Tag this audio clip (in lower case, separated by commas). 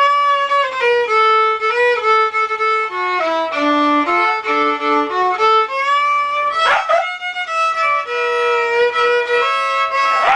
violin, musical instrument, music